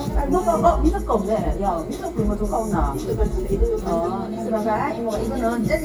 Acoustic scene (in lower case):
restaurant